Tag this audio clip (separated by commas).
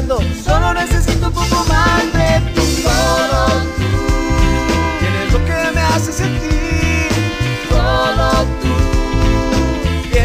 Music, Ska